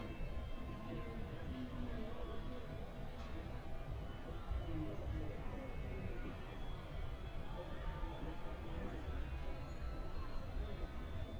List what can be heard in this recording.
engine of unclear size, person or small group talking